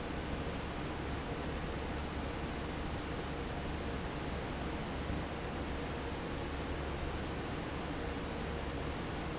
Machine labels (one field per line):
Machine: fan